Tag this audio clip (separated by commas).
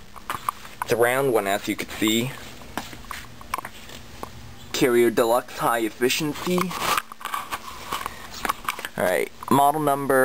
Speech